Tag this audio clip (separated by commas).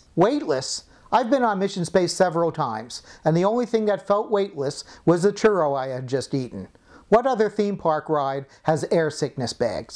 Speech